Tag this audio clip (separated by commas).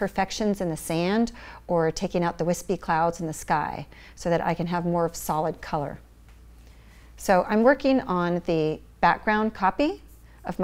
Speech